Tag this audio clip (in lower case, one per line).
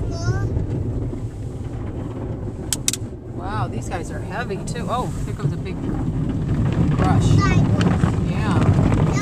speech